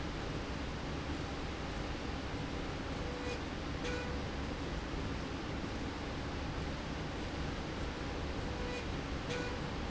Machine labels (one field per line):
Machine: slide rail